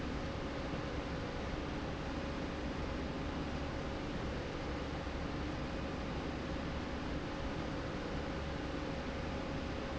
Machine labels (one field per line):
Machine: slide rail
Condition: normal